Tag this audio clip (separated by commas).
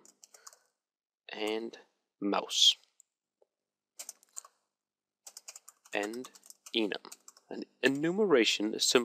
Speech